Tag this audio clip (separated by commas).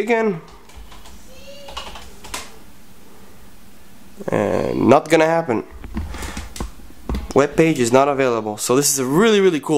Speech